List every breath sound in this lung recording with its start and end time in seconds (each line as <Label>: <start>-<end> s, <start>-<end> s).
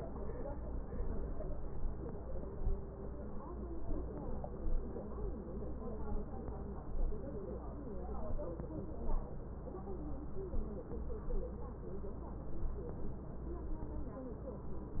Inhalation: 3.80-4.64 s, 6.13-6.91 s, 8.25-9.03 s